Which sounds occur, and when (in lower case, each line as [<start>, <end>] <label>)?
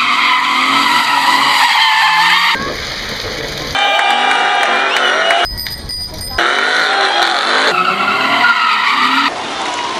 [0.00, 2.50] vroom
[0.00, 2.53] tire squeal
[0.00, 2.54] car
[2.50, 5.46] crowd
[3.70, 5.38] tire squeal
[3.70, 5.40] car
[3.73, 5.42] vroom
[3.90, 4.10] clapping
[4.31, 4.67] clapping
[4.83, 5.16] clapping
[5.42, 6.34] bicycle bell
[6.31, 9.28] tire squeal
[6.33, 9.28] vroom
[6.33, 9.27] car
[9.25, 9.95] crowd